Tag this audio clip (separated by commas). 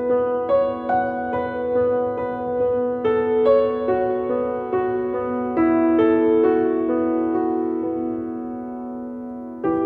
Music